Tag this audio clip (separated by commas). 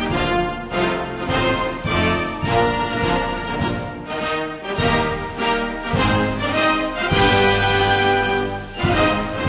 Music